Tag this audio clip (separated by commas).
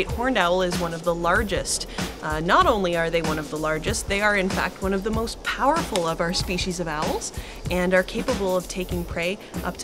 Speech, Music